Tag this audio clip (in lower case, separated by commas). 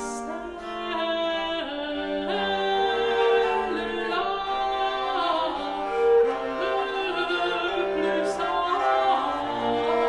music, bowed string instrument